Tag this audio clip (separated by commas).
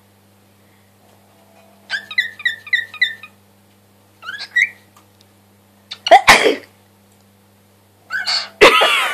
people sneezing